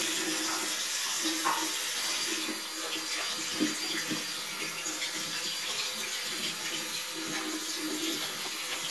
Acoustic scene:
restroom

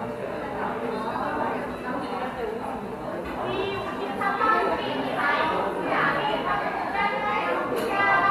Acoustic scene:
cafe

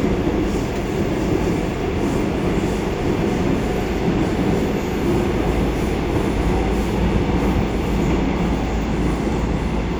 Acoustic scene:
subway train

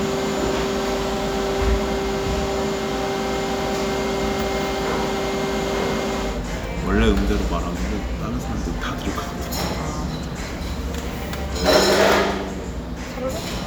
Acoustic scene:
cafe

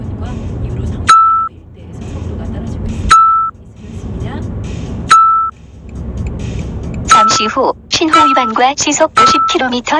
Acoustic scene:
car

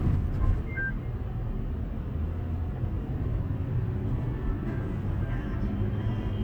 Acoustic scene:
car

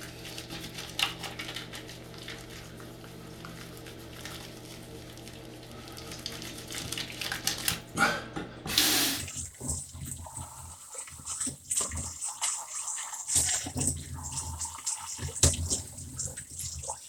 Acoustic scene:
restroom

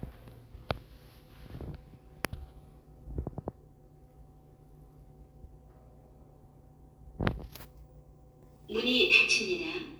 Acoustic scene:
elevator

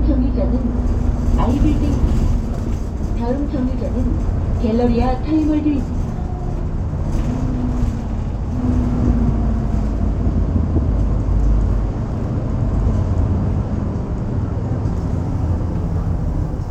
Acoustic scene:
bus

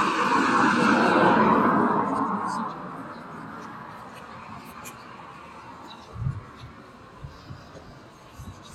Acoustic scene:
street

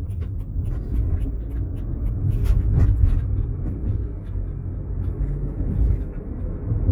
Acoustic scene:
car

